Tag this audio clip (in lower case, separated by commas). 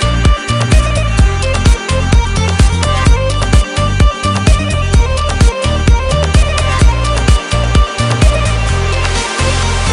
electronic dance music